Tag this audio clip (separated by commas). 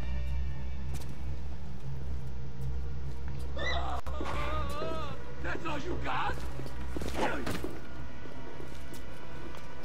Speech